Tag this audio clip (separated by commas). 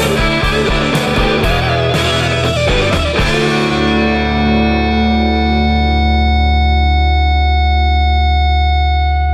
Effects unit, inside a large room or hall, Music, Distortion